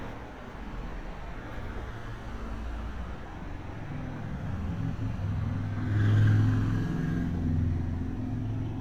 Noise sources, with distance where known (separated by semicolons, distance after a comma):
medium-sounding engine, near